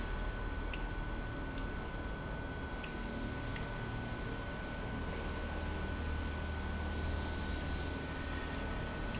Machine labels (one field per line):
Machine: pump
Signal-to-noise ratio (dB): -6 dB